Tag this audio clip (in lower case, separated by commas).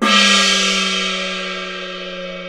musical instrument, gong, music, percussion